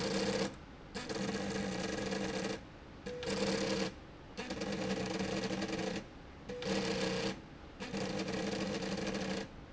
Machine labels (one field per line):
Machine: slide rail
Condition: abnormal